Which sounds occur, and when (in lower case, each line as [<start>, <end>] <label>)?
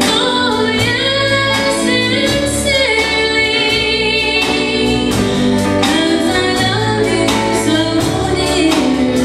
[0.00, 9.24] music
[0.03, 5.07] female singing
[5.74, 9.24] female singing